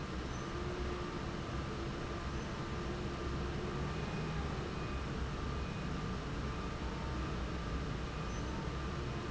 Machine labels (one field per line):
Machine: fan